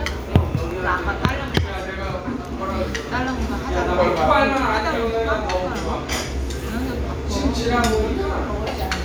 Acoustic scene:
restaurant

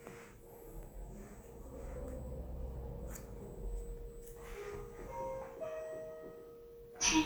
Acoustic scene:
elevator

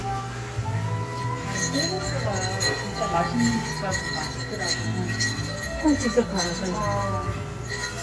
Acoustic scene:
cafe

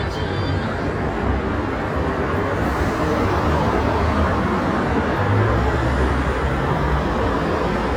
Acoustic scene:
street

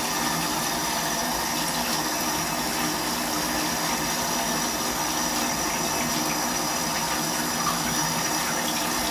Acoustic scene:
restroom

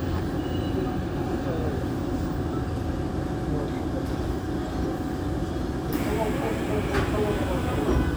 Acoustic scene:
subway train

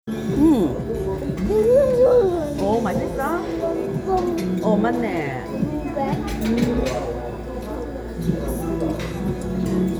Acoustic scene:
restaurant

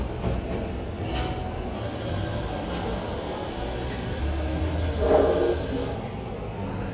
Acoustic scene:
cafe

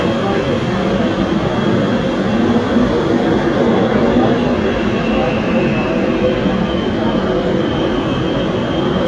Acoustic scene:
subway train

